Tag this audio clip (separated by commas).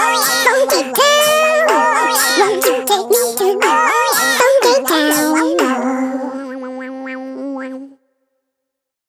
Music